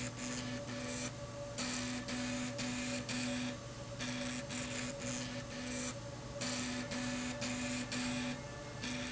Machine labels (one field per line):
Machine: slide rail